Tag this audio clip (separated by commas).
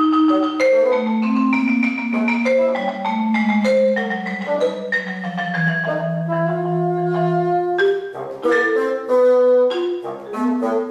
Percussion, xylophone, Musical instrument, Music